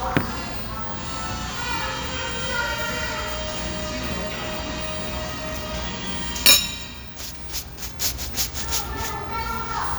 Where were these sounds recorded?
in a restaurant